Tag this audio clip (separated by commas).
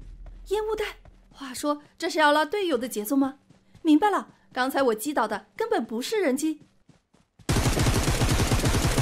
firing muskets